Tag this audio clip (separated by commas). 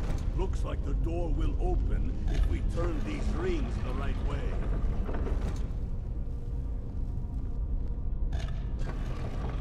Speech